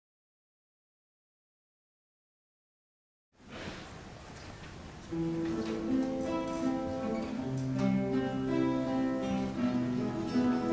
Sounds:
Music, Musical instrument

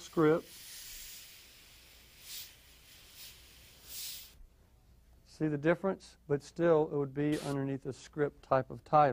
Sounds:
Speech, inside a small room

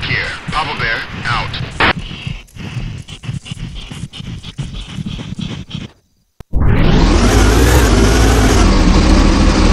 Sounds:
outside, rural or natural, Speech, Vehicle

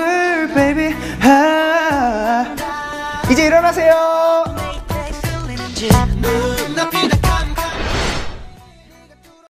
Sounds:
Music

